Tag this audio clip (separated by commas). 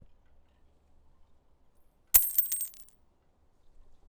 Coin (dropping), home sounds